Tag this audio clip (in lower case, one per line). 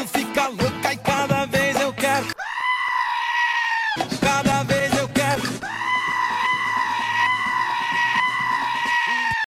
bleat
sheep
music